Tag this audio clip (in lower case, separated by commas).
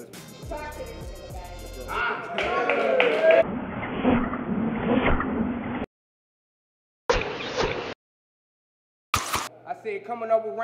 music, speech